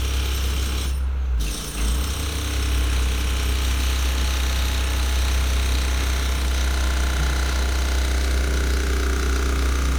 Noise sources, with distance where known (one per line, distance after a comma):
jackhammer, near